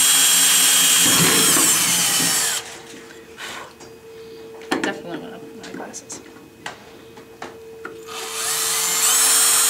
Drill running and female speaking